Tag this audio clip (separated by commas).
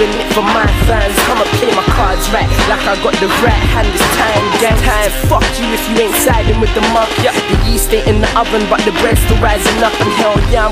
Music